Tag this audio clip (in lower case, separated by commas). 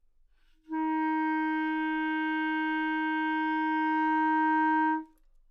music, musical instrument, wind instrument